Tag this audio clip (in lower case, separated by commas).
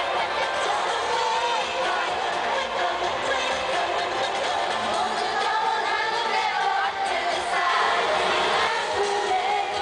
music